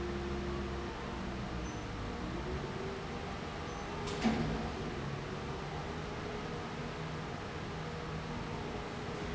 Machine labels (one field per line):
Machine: fan